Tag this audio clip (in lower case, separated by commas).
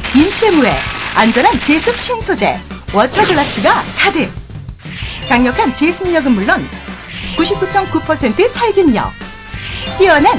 music, speech